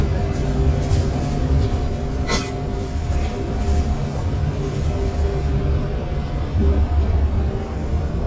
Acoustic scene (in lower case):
bus